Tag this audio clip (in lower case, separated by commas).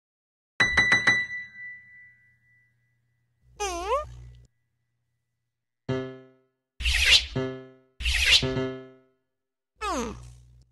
ding-dong